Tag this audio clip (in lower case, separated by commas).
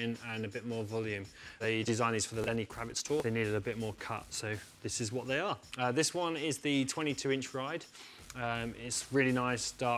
speech